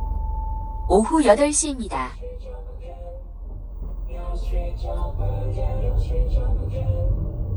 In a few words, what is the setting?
car